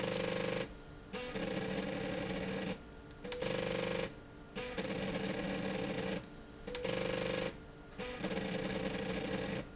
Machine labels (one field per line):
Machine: slide rail